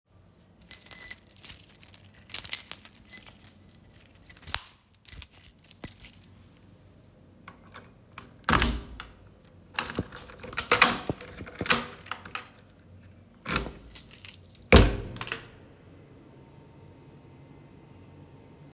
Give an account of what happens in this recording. I took my keys out. I opened the door with the keys.